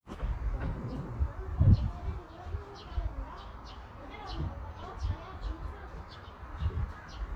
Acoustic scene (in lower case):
park